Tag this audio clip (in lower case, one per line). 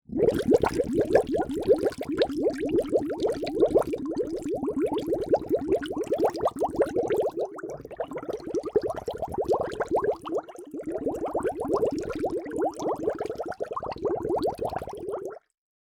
gurgling
water